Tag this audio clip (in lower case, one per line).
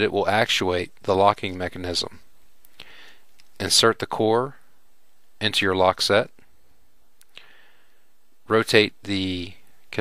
speech